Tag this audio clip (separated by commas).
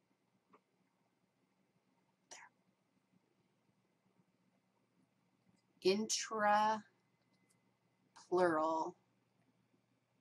Speech